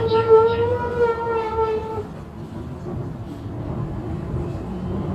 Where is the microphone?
on a bus